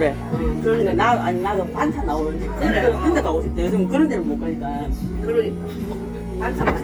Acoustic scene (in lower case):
crowded indoor space